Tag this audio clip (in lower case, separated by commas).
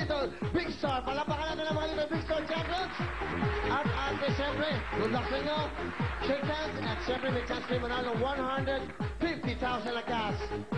music, speech